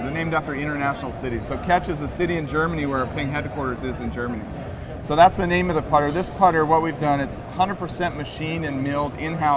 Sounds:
speech

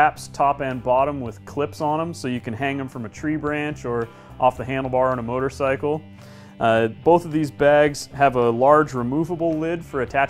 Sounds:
speech
music

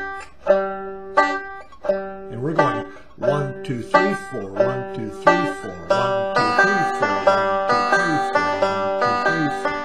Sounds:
playing banjo

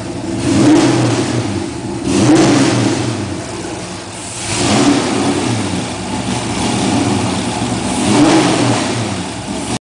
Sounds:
accelerating
engine

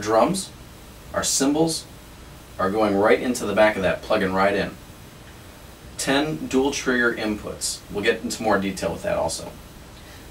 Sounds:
speech

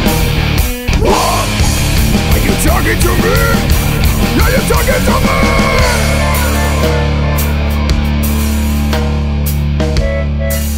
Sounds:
music

